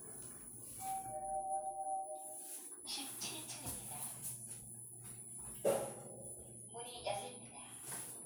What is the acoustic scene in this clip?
elevator